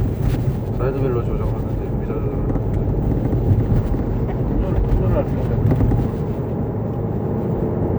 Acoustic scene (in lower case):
car